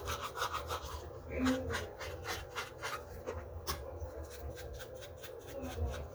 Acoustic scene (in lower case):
restroom